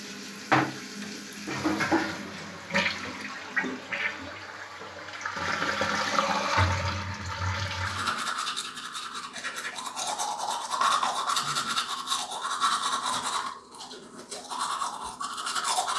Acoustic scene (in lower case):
restroom